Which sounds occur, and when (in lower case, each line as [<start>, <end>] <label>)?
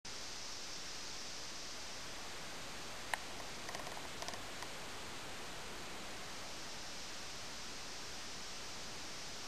[0.00, 9.45] background noise